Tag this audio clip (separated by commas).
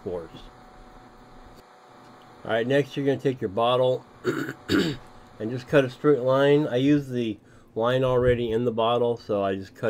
Speech